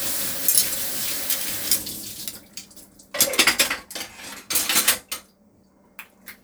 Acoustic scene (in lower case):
kitchen